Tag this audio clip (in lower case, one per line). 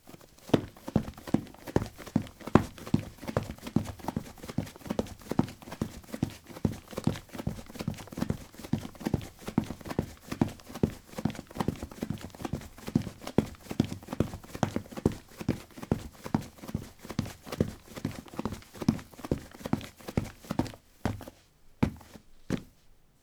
run